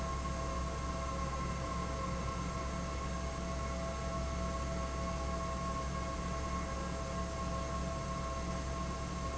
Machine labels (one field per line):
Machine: fan